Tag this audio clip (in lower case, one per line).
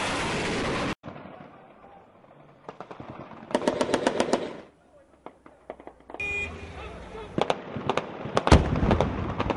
vehicle
explosion
outside, urban or man-made